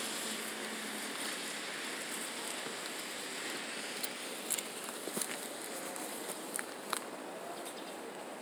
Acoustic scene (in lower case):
residential area